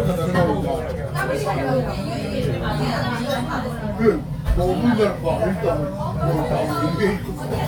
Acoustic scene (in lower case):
restaurant